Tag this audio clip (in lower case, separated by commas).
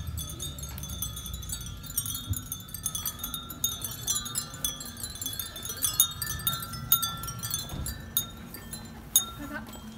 wind chime